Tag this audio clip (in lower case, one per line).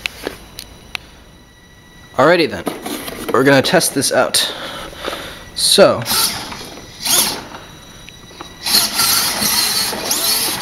speech